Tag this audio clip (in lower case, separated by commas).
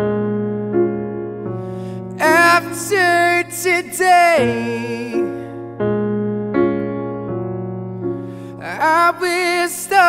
folk music, music